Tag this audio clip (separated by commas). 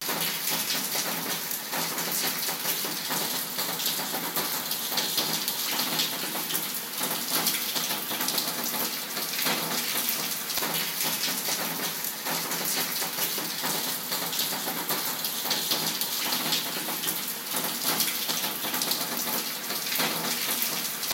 Water, Rain